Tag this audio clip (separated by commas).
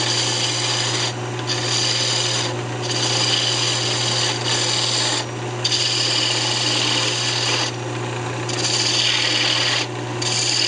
Tools